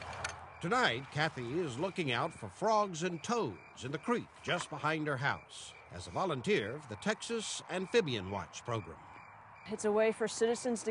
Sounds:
speech

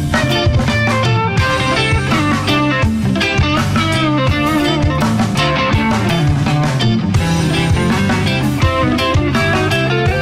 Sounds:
music, rock music, reggae

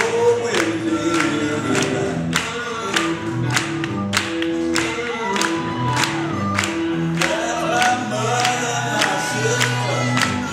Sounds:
speech, music

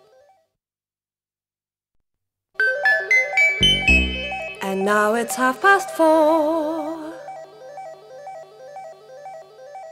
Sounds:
music, female singing

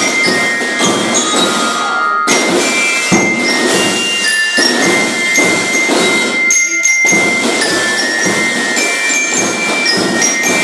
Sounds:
jingle bell, music

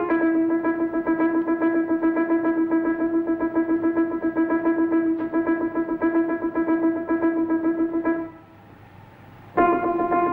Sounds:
music

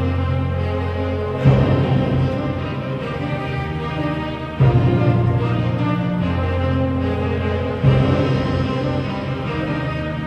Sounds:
playing timpani

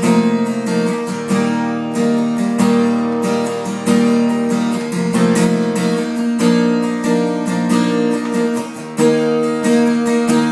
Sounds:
musical instrument, plucked string instrument, acoustic guitar, guitar, playing acoustic guitar, music

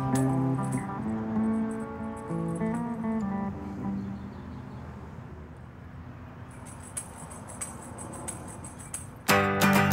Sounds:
music

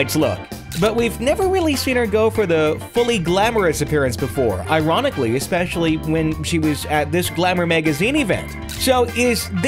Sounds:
speech, music

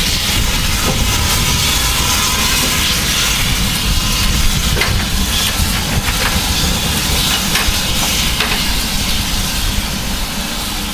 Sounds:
hiss

